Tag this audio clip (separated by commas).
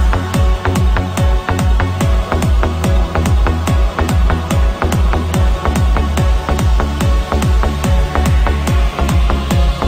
Music